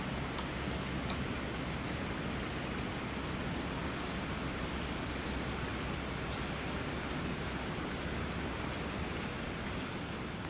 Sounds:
woodpecker pecking tree

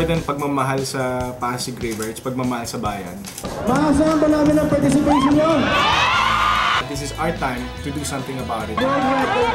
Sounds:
Speech, Music

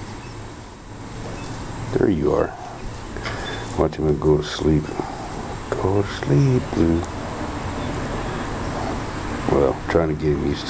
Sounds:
Speech, outside, urban or man-made

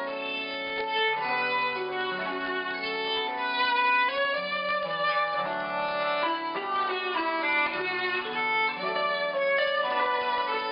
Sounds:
Musical instrument, Violin, Music

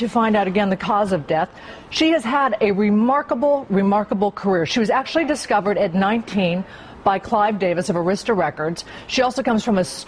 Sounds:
Speech

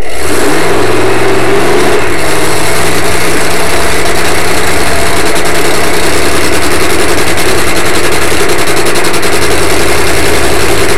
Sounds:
Vehicle

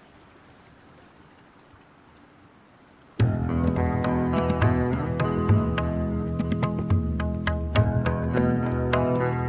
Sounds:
Music

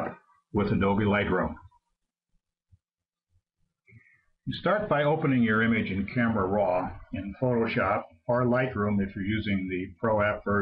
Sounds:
Speech

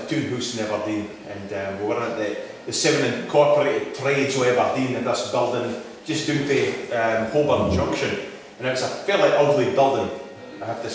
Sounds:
Speech

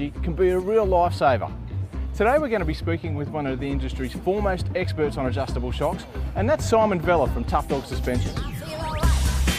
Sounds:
Speech, Music

